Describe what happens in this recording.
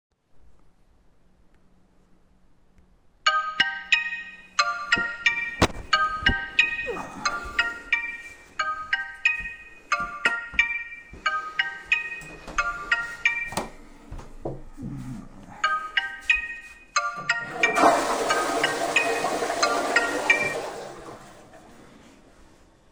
While in bed, phone starts ringing. Getting out of bed, approaching the toilet and flushing it.